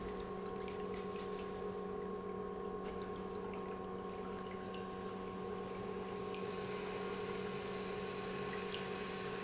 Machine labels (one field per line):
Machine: pump